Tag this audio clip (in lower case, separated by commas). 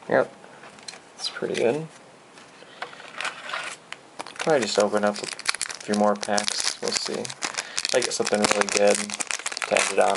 inside a small room, speech